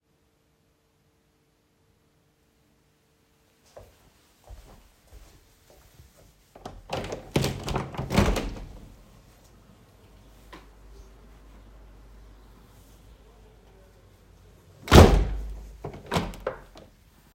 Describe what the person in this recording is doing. I walked to the window and then opened the window. I heard birds and a distant voice outside the open window. After that, I closed the window.